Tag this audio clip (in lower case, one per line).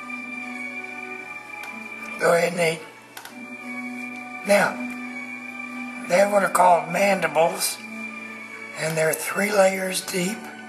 speech
music